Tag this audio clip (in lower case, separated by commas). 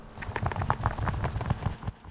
animal, bird, wild animals